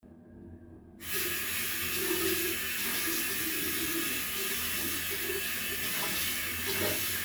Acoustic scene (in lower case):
restroom